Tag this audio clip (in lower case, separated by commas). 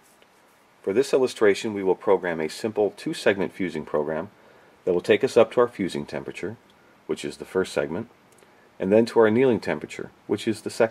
speech